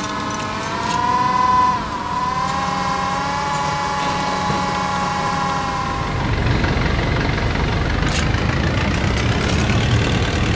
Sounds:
Vehicle

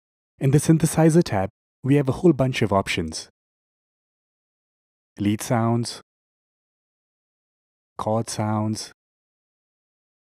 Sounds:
Speech

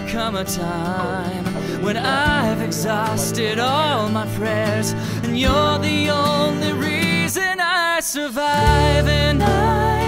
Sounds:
Music, Speech, Happy music

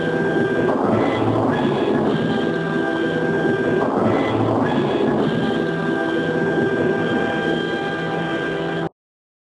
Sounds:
Music

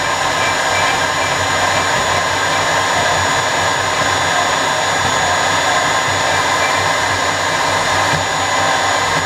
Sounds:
Tools

